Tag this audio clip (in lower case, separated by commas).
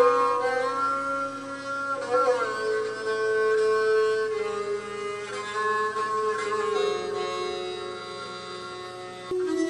musical instrument, music, folk music